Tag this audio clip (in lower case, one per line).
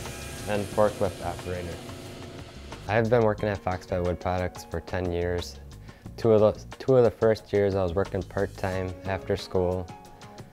speech
music